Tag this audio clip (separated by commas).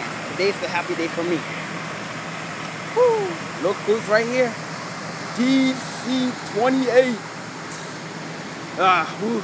Speech